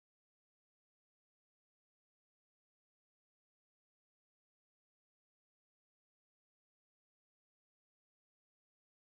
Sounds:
chimpanzee pant-hooting

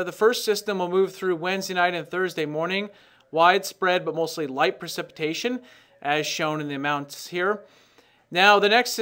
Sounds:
Speech

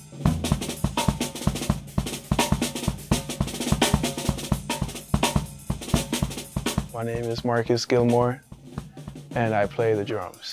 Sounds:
Bass drum, Drum roll, Drum, Musical instrument, Hi-hat, Drum kit, Speech, Cymbal, Music

